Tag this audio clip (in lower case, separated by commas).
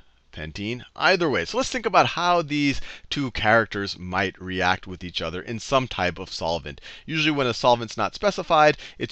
speech